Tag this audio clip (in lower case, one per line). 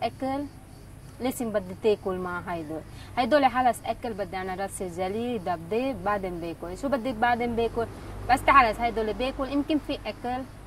speech